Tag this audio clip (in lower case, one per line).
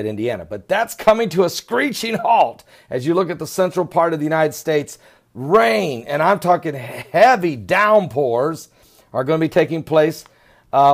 speech